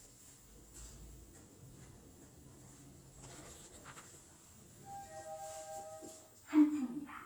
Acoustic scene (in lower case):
elevator